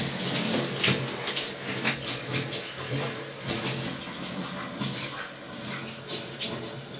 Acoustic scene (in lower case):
restroom